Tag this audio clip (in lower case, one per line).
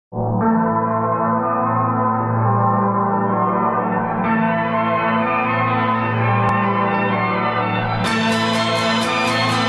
music